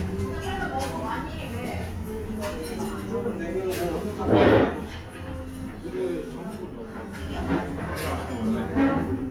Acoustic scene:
restaurant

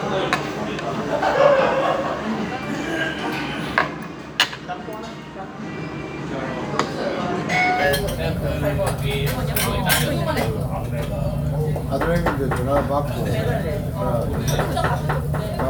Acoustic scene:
restaurant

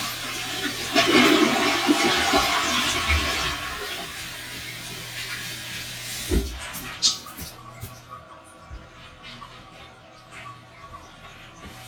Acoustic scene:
restroom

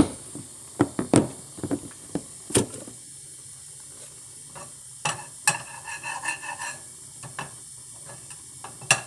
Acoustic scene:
kitchen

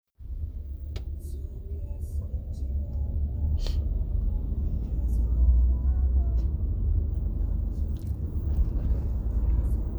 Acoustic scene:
car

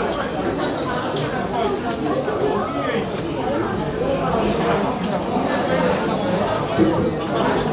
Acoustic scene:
cafe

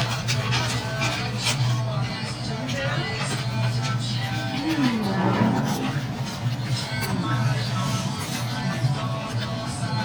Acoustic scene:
restaurant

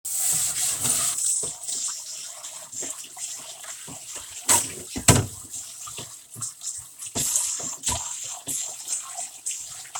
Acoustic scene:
kitchen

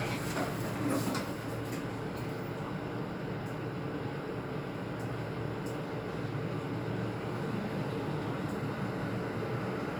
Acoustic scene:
elevator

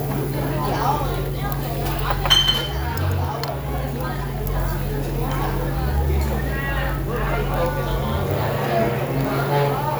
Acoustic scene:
restaurant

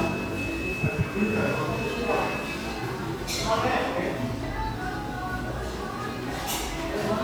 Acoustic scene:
cafe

